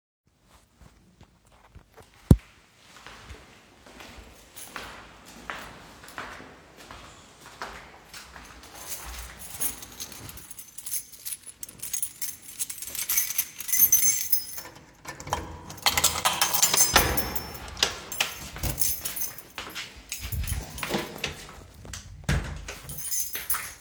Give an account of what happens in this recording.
I walked down the hallway, took my key and unlocked the apartment door. Then I went in and closed the door.